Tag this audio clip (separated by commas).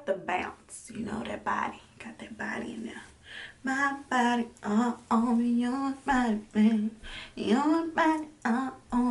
Singing, Speech, inside a small room